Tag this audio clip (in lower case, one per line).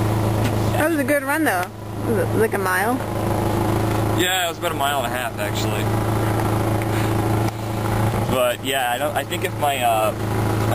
speech